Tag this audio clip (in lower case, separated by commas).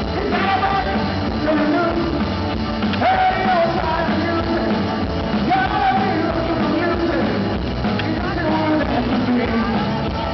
music, rock and roll